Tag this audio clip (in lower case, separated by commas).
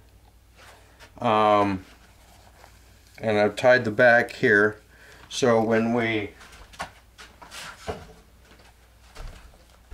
speech